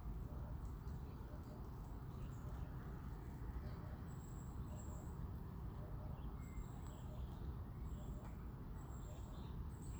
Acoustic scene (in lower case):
park